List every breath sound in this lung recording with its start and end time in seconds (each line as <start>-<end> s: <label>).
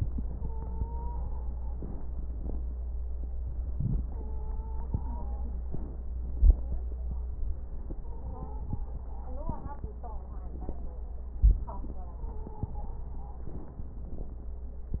0.37-1.74 s: stridor
1.59-3.27 s: inhalation
3.27-5.66 s: exhalation
4.11-5.50 s: stridor
5.66-7.30 s: inhalation
5.66-7.30 s: crackles
7.31-9.09 s: exhalation
7.95-8.89 s: stridor
9.08-11.32 s: inhalation
9.08-11.32 s: crackles
11.31-13.43 s: exhalation
11.83-13.17 s: stridor
13.43-15.00 s: inhalation
13.43-15.00 s: crackles